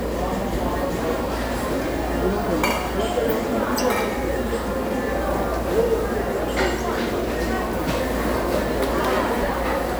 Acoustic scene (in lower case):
restaurant